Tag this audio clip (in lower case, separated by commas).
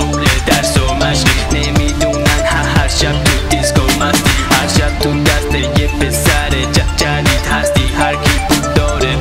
afrobeat, music